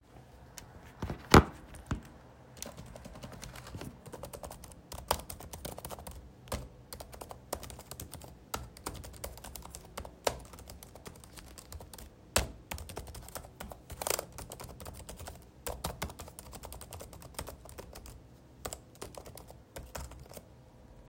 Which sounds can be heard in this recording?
keyboard typing